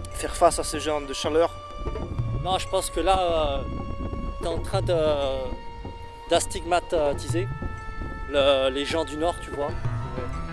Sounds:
music
speech

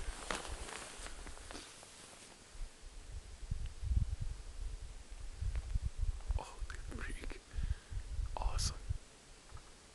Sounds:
speech

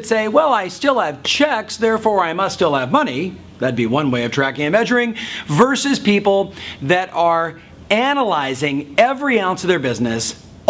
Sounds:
speech

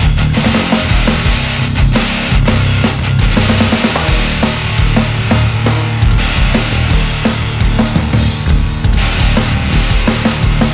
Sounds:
music

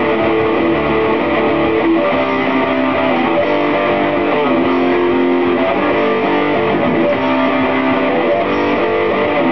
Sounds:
acoustic guitar
music
musical instrument

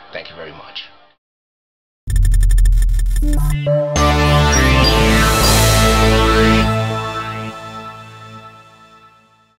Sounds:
music
speech

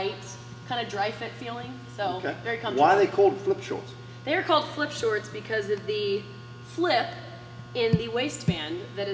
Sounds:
speech

